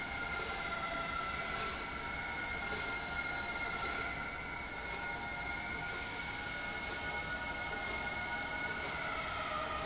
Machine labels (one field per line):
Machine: slide rail